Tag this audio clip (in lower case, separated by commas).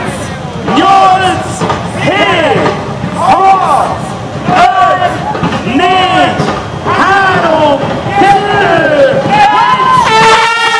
speech, outside, urban or man-made, crowd